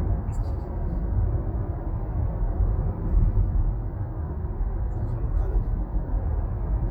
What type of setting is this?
car